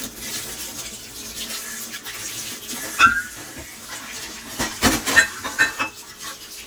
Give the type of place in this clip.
kitchen